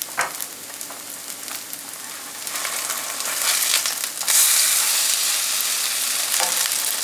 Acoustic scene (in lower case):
kitchen